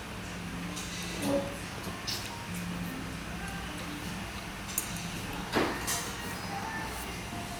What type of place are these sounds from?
restaurant